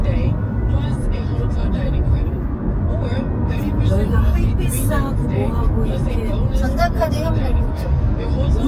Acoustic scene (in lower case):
car